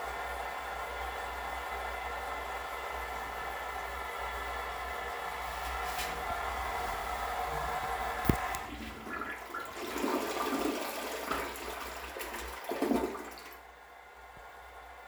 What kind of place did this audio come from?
restroom